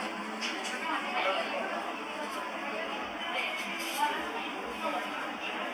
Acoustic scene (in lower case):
cafe